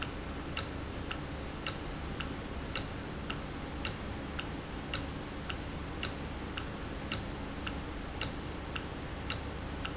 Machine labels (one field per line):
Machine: valve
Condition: normal